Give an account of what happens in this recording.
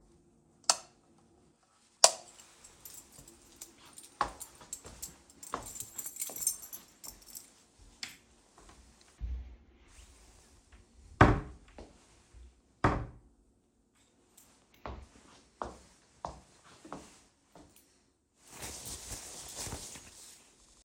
I turn on the light,leave my key walk to the wardrobe get my jacket and close the wardrobe door.